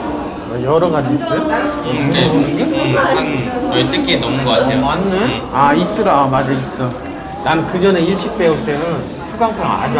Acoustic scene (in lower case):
cafe